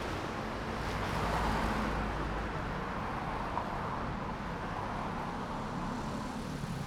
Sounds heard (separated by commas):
motorcycle engine accelerating, car, car wheels rolling, motorcycle